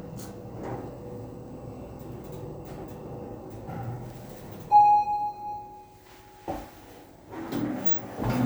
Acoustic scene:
elevator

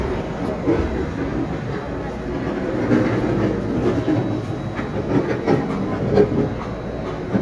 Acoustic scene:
subway train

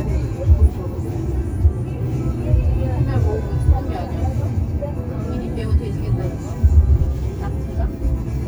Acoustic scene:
car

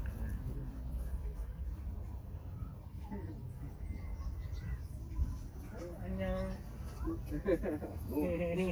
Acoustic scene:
park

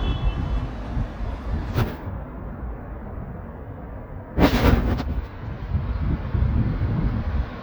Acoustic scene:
street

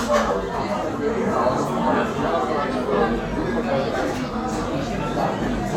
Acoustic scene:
crowded indoor space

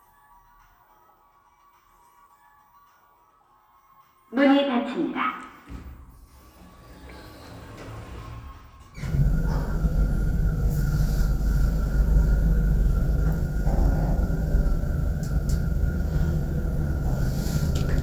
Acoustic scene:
elevator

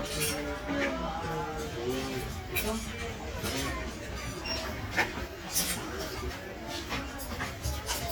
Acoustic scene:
crowded indoor space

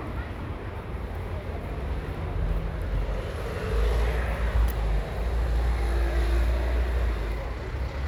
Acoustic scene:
residential area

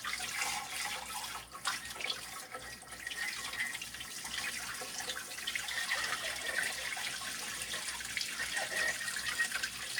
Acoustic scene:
kitchen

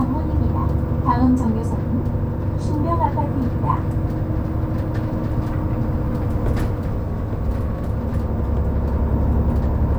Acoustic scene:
bus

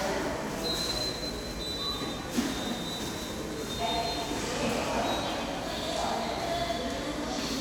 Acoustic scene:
subway station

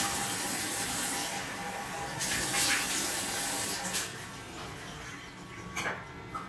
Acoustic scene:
restroom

